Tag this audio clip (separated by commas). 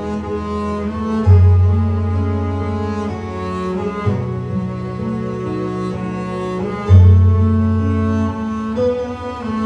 Cello, Bowed string instrument, Double bass